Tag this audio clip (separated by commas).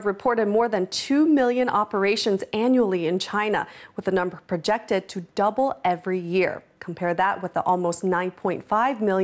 Speech